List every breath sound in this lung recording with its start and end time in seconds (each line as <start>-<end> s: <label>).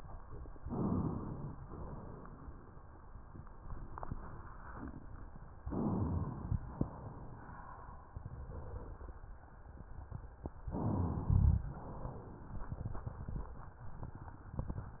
0.55-1.51 s: inhalation
1.51-2.80 s: exhalation
5.65-6.61 s: inhalation
6.61-7.80 s: exhalation
10.68-11.63 s: inhalation
11.63-12.64 s: exhalation